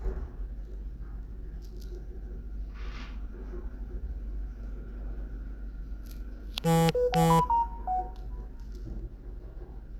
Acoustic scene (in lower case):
elevator